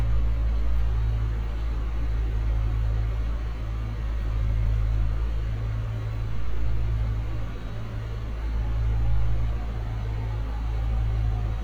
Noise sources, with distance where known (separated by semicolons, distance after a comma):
large-sounding engine; siren, far